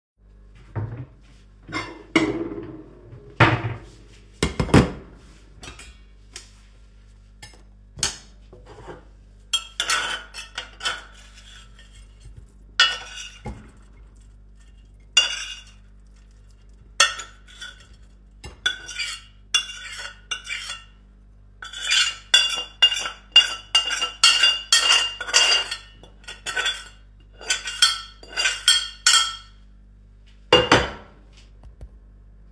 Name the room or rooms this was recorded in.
kitchen